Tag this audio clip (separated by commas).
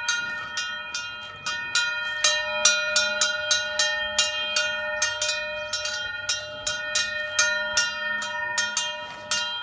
bovinae cowbell